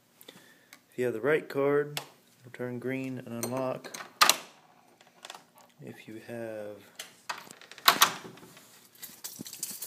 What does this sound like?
A man speaks followed by some clicking and a door opening and shutting